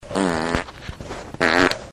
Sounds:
Fart

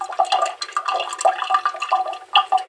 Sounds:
Sink (filling or washing), home sounds, Water

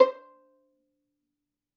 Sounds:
Musical instrument, Music, Bowed string instrument

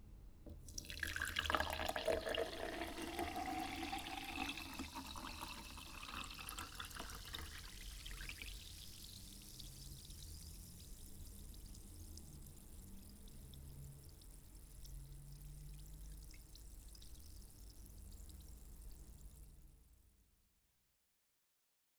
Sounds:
Liquid, Fill (with liquid)

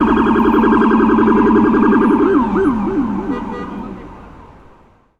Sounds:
Siren, Alarm, Motor vehicle (road), Vehicle

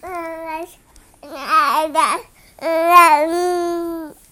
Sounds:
Speech, Human voice

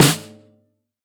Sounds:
Musical instrument, Drum, Snare drum, Percussion, Music

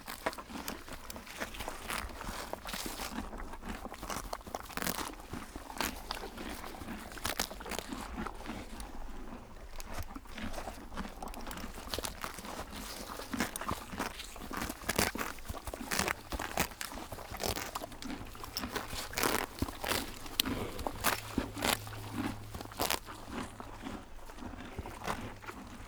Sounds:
livestock, Animal

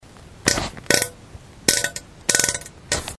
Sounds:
Fart

